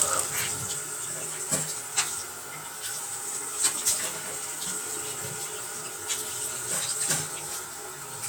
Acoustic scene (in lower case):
restroom